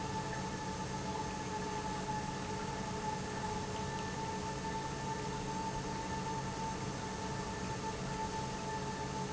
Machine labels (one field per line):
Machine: pump